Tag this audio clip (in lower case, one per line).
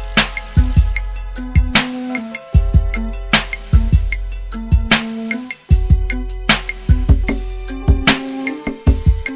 hip hop music
music